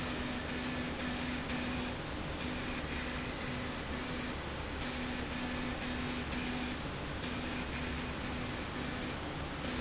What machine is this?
slide rail